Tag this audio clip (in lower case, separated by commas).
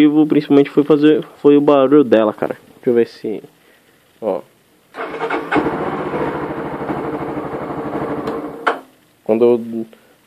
running electric fan